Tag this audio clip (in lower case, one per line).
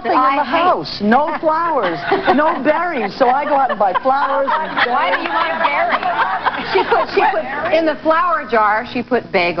speech